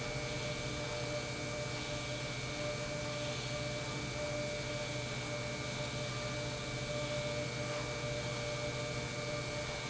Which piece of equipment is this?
pump